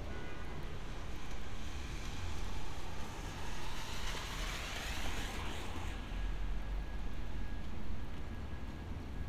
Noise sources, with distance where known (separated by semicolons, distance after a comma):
car horn, far